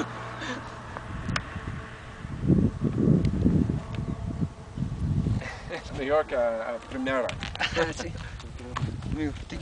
Wind blows as human adults talk and laugh